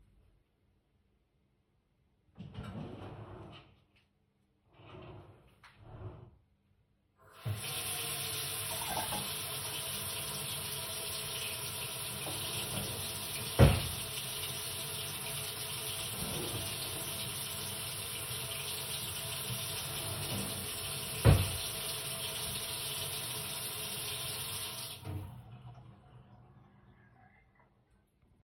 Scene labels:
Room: kitchen; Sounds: wardrobe or drawer (more than once), running water

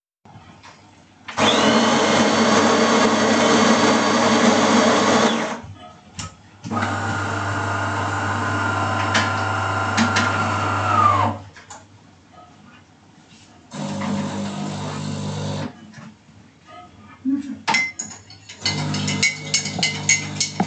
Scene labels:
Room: kitchen; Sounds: coffee machine, cutlery and dishes

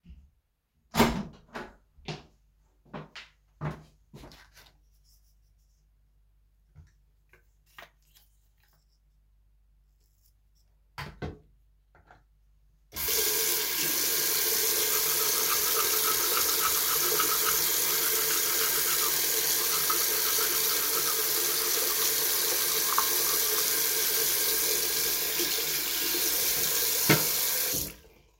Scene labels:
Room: bathroom; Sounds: door (more than once), footsteps, running water

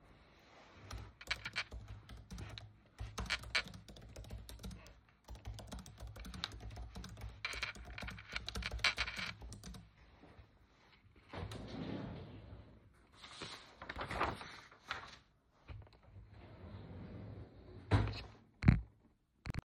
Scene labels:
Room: bedroom; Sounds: keyboard typing, wardrobe or drawer (more than once)

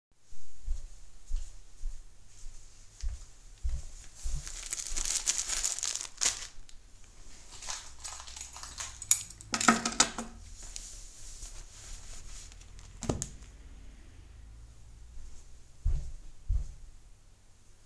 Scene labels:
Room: hallway; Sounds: footsteps, keys

